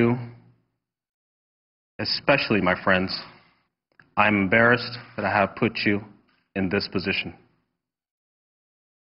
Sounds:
speech

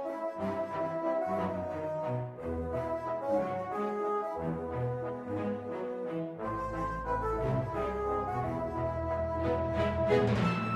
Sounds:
background music, video game music, music

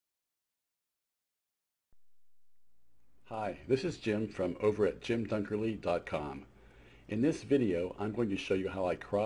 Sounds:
speech

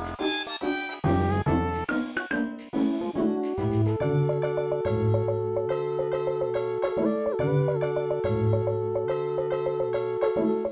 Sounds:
music, video game music

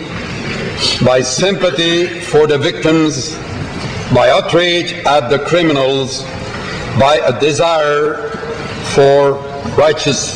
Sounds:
monologue, speech, male speech

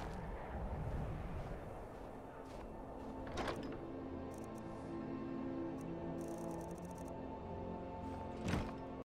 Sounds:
music

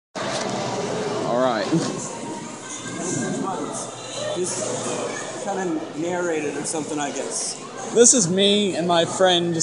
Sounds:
inside a large room or hall, male speech, speech

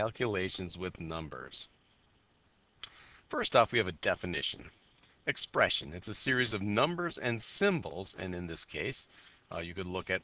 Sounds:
speech

